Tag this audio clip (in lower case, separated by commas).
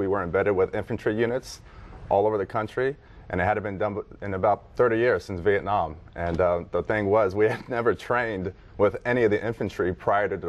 speech